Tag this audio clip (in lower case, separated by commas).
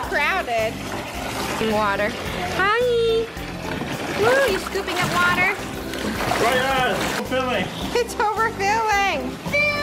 splashing water